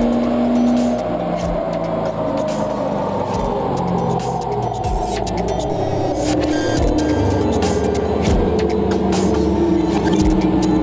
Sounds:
vehicle, car, music

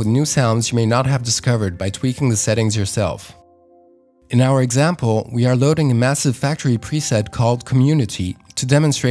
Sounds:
music, speech

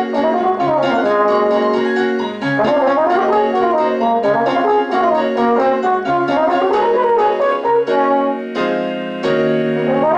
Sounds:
music, piano, brass instrument

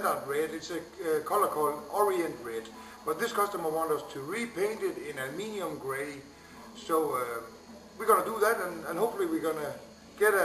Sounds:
speech, music

